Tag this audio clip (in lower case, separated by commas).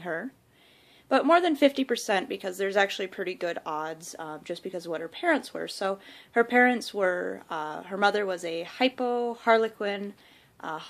speech, inside a small room